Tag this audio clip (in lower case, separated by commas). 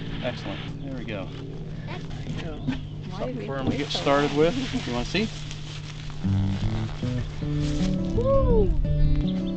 animal, speech, music